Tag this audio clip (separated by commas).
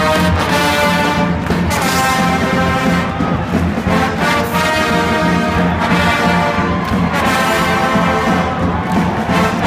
Music